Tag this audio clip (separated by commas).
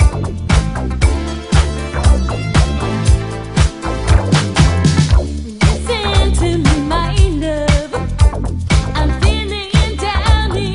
Music